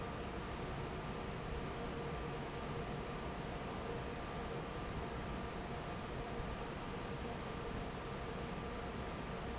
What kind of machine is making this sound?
fan